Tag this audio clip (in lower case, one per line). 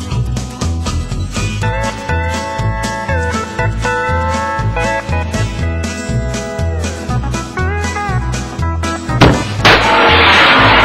music